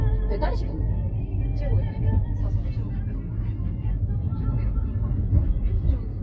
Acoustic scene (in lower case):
car